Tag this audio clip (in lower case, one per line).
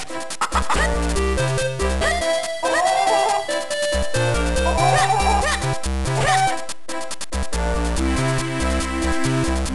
music